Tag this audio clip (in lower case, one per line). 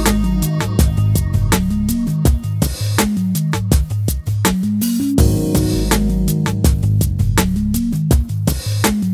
music